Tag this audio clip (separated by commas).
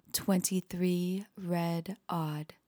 Female speech, Speech, Human voice